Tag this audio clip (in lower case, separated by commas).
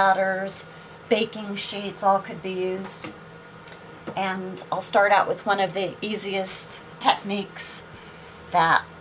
speech